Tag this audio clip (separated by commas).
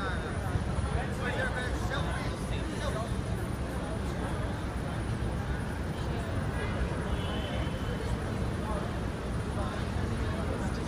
Speech